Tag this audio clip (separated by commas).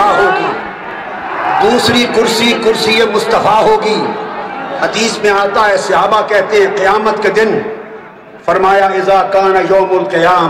Male speech, Narration, Speech